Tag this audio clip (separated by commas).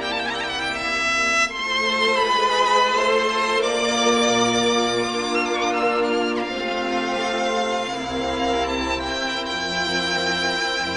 Musical instrument, Music, Violin